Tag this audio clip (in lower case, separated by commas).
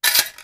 tools